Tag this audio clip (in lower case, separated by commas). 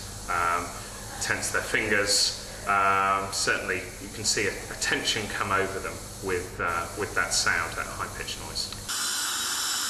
speech